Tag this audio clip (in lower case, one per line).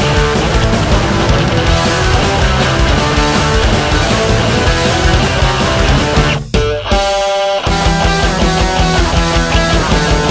music